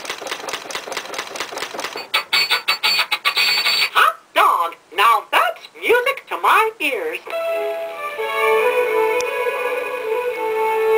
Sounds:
speech, music

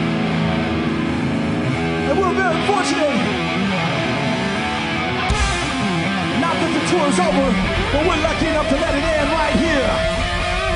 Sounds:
speech, music

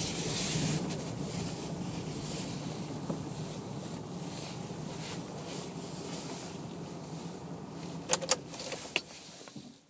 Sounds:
keys jangling, vehicle

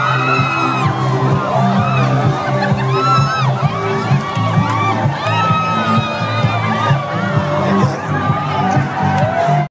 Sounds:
music, speech

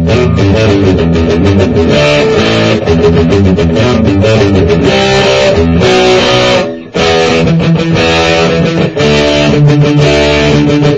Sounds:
musical instrument, guitar, music, strum, plucked string instrument

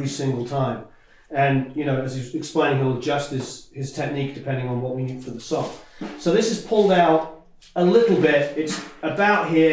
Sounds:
speech, drum

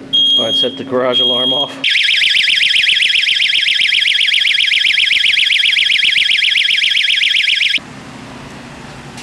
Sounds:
smoke alarm, speech

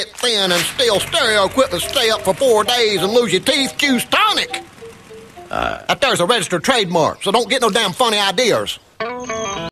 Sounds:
speech, music

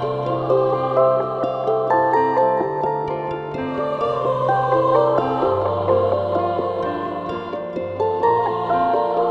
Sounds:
music, new-age music

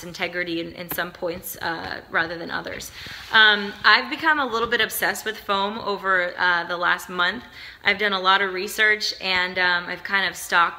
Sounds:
speech

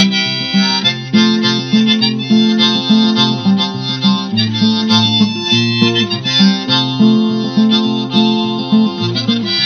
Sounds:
music

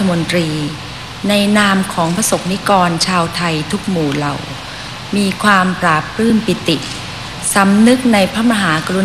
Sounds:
female speech, speech

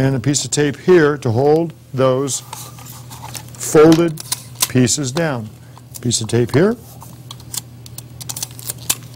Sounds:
speech

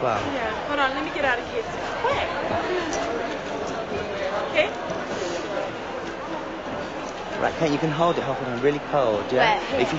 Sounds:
speech

